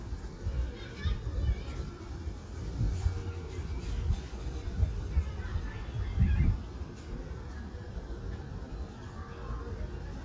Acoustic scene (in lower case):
residential area